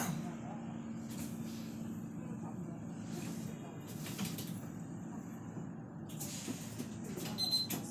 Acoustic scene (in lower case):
bus